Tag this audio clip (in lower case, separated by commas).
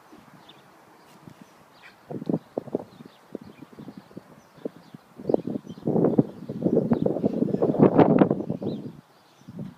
horse clip-clop, clip-clop